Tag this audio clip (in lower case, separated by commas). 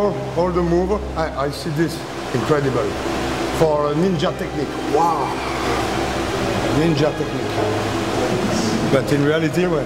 music, speech